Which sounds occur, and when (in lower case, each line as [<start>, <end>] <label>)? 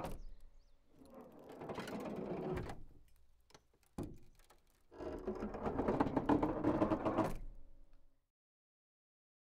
[0.00, 8.34] background noise
[3.46, 3.65] tap
[3.48, 7.43] creak
[3.94, 4.35] slam